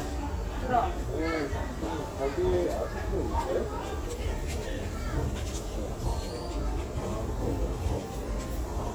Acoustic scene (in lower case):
crowded indoor space